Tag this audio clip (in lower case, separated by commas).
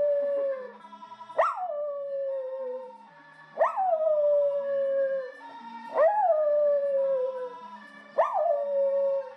music, howl, animal, dog